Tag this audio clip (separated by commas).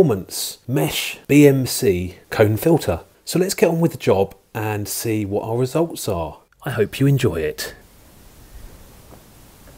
Speech